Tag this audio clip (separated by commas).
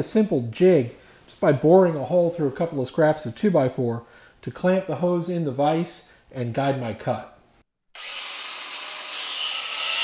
Speech